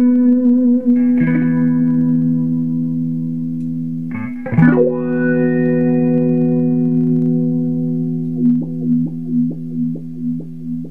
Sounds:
guitar
effects unit
plucked string instrument
music
musical instrument

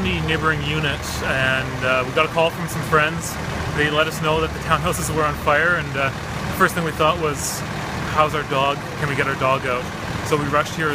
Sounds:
speech

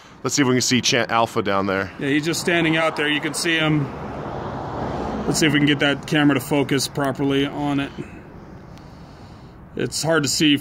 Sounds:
speech

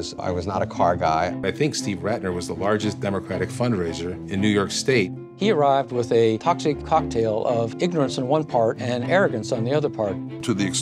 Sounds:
speech
music

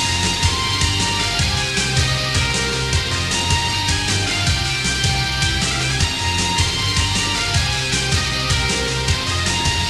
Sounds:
music
soundtrack music
theme music

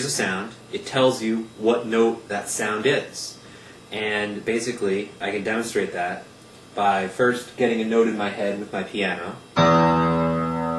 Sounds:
musical instrument
music
speech

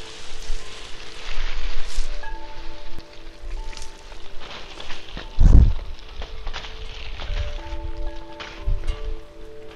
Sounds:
music
rustling leaves

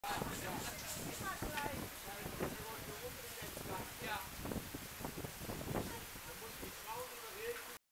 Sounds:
speech

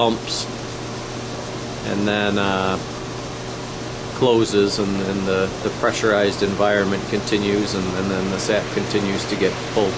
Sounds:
water
pump (liquid)

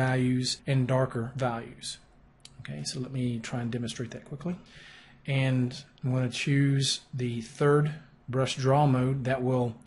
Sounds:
speech

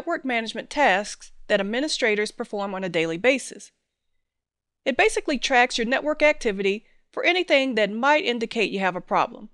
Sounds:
speech

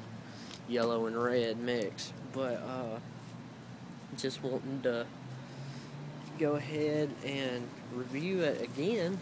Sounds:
speech

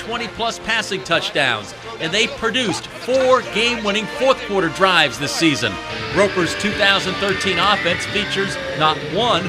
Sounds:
speech
music
man speaking

